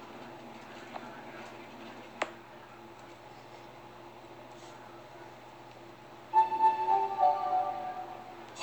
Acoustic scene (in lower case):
elevator